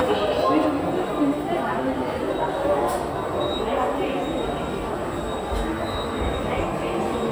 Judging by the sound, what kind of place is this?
subway station